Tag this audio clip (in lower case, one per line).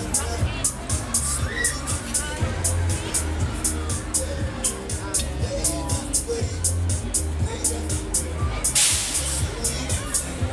slosh
music
speech